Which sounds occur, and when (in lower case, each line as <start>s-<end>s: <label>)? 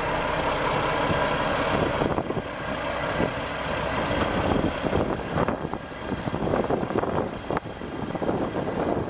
0.0s-9.0s: wind
0.0s-9.0s: truck
1.1s-1.2s: wind noise (microphone)
1.7s-2.5s: wind noise (microphone)
3.2s-3.3s: wind noise (microphone)
4.2s-5.8s: wind noise (microphone)
6.0s-9.0s: wind noise (microphone)